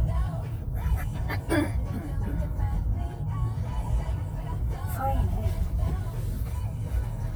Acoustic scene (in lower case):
car